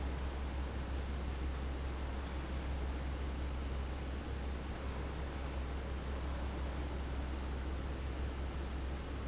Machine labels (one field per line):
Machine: fan